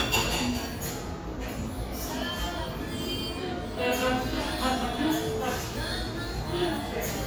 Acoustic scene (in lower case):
cafe